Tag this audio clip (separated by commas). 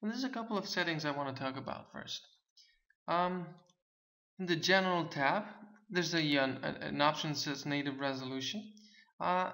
Speech